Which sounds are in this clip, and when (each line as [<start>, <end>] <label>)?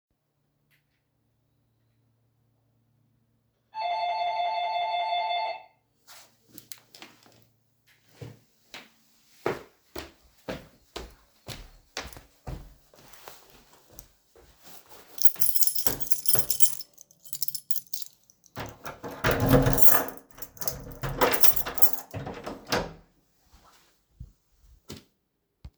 [3.72, 5.76] bell ringing
[8.18, 14.45] footsteps
[15.04, 18.23] keys
[18.55, 23.21] door
[19.53, 20.14] keys
[21.19, 22.07] keys